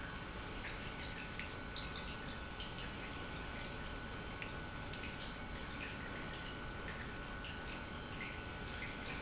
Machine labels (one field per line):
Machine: pump